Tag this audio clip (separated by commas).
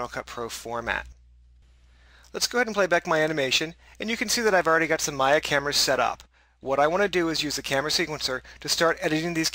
Speech